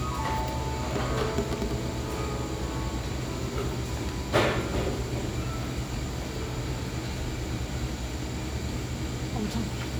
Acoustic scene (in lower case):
cafe